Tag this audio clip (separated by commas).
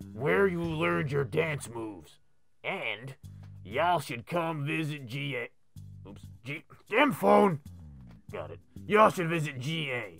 inside a small room, Speech